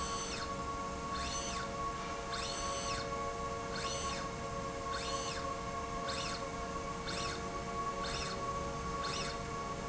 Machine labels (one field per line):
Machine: slide rail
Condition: normal